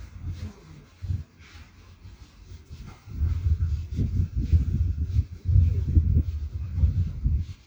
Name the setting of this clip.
residential area